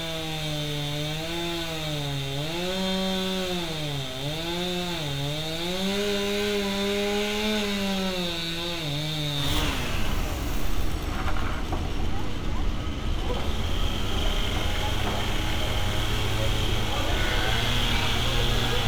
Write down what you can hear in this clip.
chainsaw